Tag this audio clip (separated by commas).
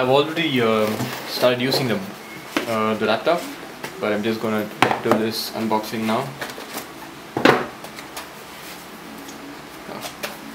Speech